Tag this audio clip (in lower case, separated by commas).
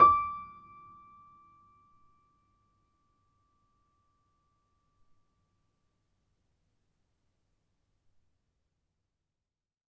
keyboard (musical), music, musical instrument, piano